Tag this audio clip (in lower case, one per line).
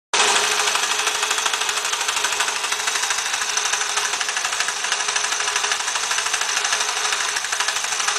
idling
engine